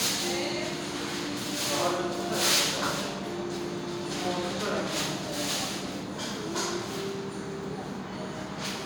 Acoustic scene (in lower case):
restaurant